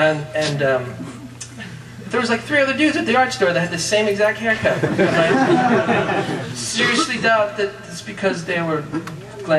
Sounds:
Speech

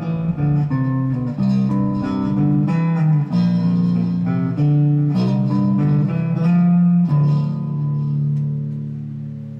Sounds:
Bass guitar, Plucked string instrument, Music, Guitar, Musical instrument

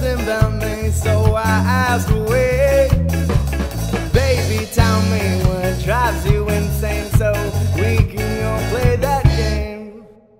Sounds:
Ska, Music

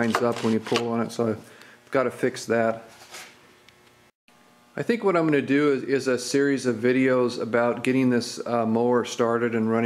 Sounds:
Speech

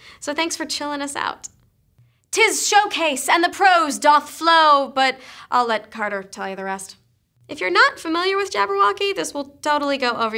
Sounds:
Speech

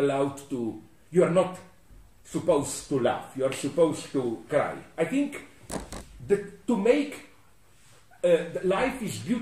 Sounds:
Speech

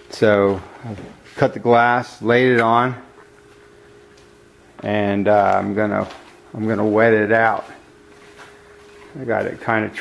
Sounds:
Speech

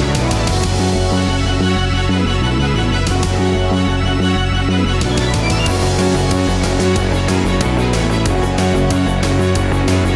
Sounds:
Music

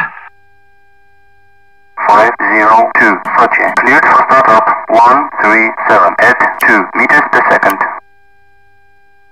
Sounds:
Speech

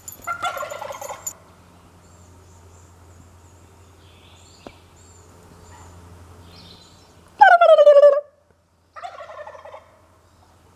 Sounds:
turkey gobbling

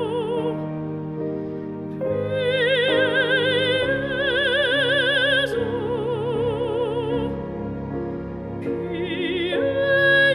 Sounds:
Female singing, Music

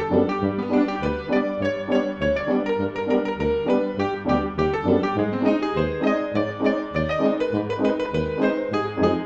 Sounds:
Music, Soundtrack music

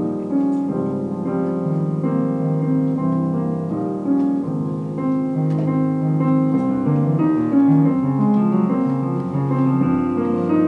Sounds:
Music

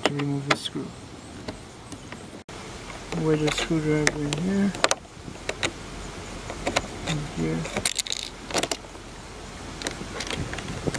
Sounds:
opening or closing car doors

